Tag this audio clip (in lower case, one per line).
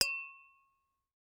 glass